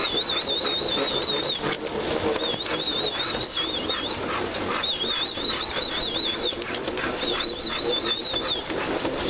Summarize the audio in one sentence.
High-pitched whistling accompanies animals whimpering and sniffling